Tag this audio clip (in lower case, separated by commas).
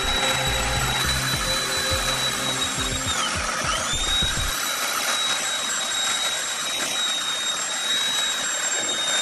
music, tools